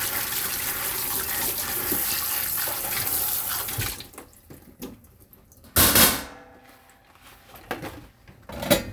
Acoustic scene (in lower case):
kitchen